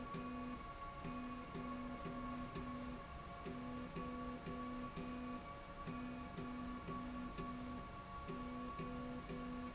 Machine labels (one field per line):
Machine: slide rail